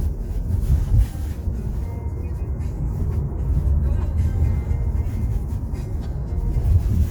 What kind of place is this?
car